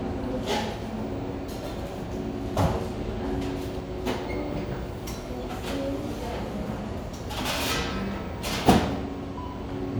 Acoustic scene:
cafe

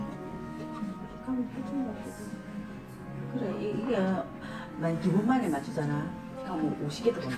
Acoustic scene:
crowded indoor space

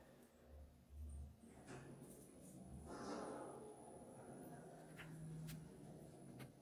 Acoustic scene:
elevator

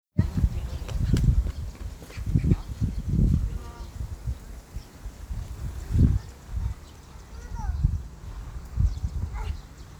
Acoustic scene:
park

